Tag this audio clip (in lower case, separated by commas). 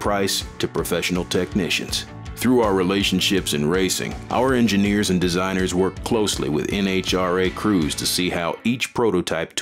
speech, music